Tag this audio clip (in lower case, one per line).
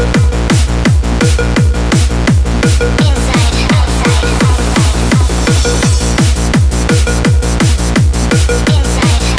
music